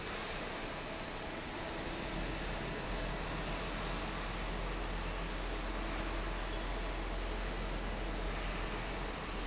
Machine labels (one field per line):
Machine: fan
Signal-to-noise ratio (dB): -6 dB